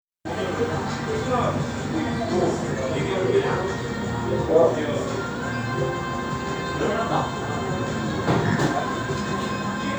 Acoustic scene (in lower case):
cafe